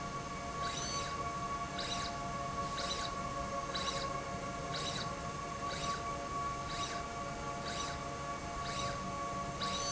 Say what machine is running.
slide rail